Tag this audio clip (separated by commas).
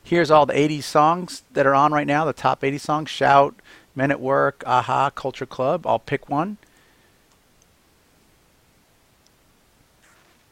Speech